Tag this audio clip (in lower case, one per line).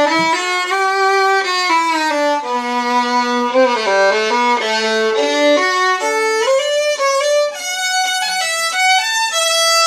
fiddle
musical instrument
music